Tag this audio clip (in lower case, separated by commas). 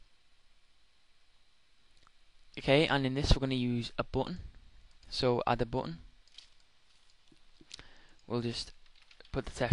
speech